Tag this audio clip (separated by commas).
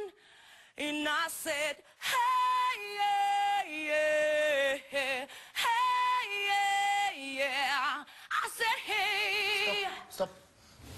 Speech